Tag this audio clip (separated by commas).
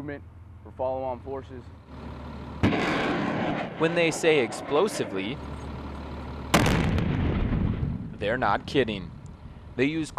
Speech